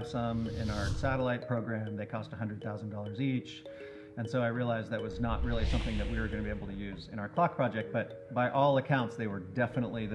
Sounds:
Speech, Music

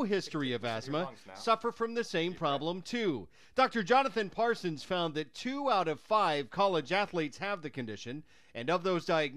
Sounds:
Speech

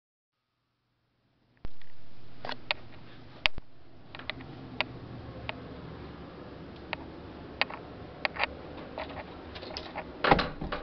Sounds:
inside a large room or hall

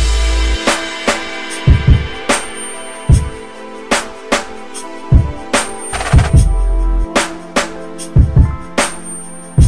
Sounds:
Music

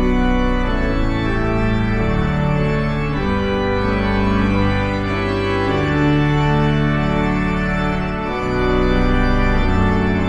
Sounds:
playing electronic organ

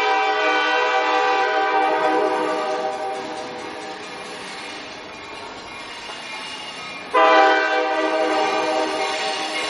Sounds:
train horning

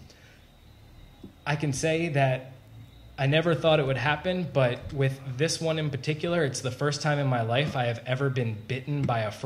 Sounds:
Speech

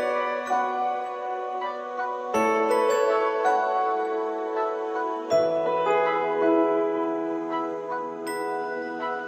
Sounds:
Glockenspiel, Mallet percussion, xylophone

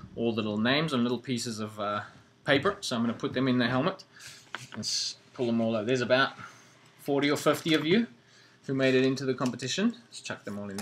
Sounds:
Speech

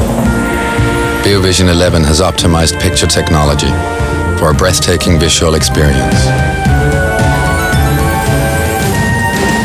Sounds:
Speech, Music

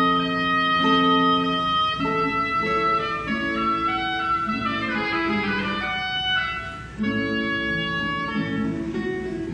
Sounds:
Musical instrument, Music, Plucked string instrument, Guitar

